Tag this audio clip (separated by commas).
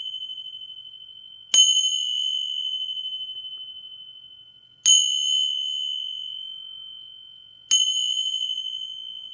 Music, Bell